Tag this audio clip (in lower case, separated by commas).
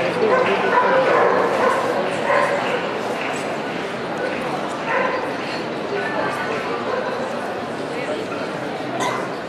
animal, speech, bow-wow, domestic animals, dog